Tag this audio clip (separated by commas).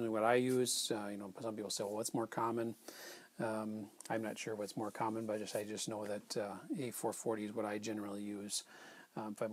Speech